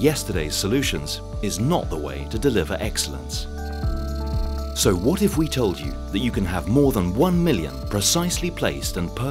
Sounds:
speech, music

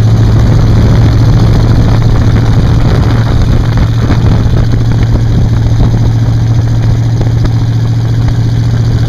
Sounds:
vehicle

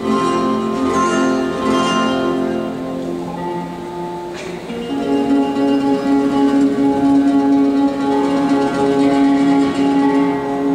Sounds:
music of latin america, flamenco, music

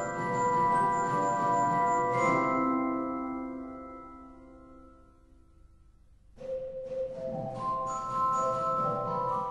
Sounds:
musical instrument, music, organ

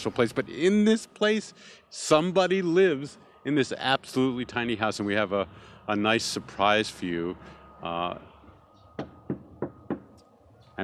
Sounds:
speech

